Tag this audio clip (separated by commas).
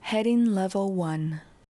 Female speech, Human voice, Speech